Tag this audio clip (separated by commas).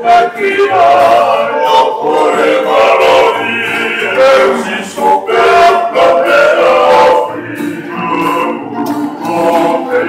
inside a large room or hall, Music, Singing